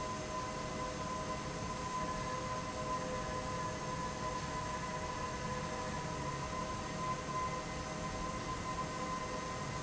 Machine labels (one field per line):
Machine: fan